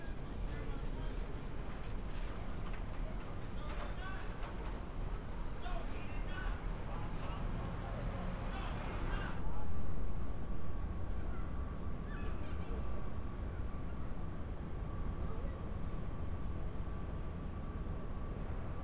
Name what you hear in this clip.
person or small group shouting